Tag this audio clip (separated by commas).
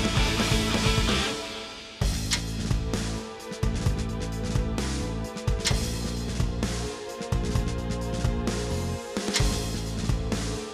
Music